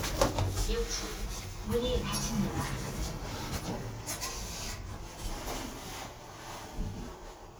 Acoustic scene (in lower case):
elevator